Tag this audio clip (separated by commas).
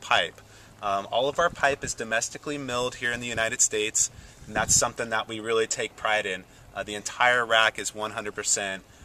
Speech